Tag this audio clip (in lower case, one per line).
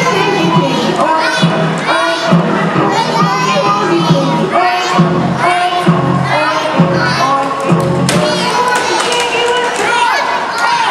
music
tap